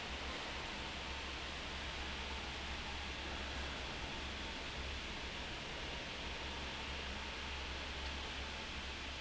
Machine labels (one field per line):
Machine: fan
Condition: abnormal